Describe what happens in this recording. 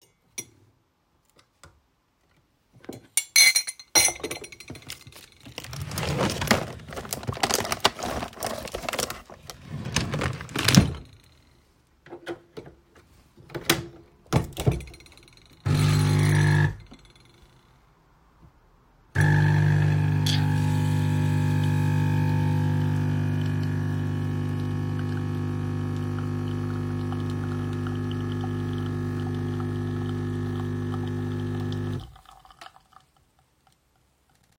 I picked up a cup and placed it on the coffee machine tray. then took a coffee capsule from the drawer, inserted it into the machine, and pressed the button to start brewing.